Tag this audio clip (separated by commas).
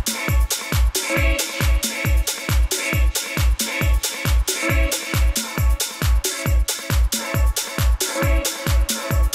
Music, Disco